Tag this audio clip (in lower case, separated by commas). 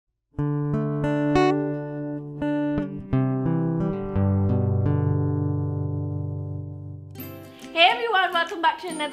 speech, music